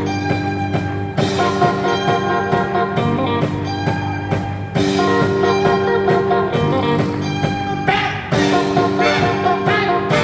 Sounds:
music

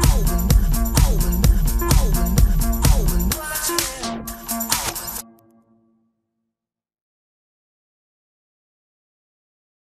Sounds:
electronic music, music

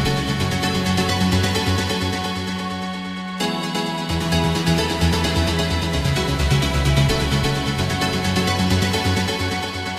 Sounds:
music, electronic music, techno

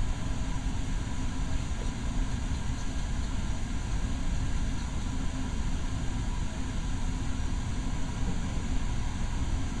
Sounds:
liquid

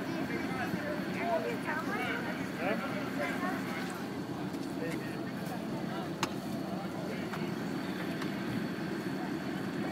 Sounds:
vehicle, speech

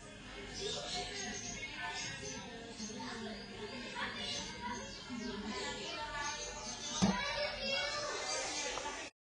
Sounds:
inside a small room, speech, animal

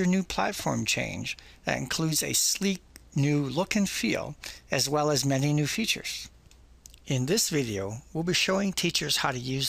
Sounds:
speech

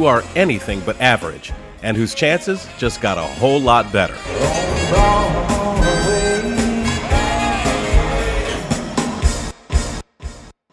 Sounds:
music, speech

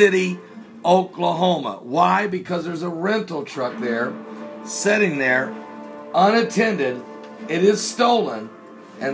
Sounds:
speech, music

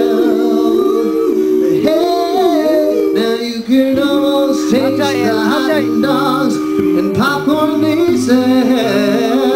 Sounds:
vocal music, singing, speech, music

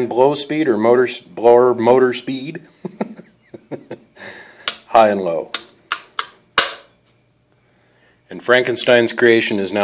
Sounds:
speech

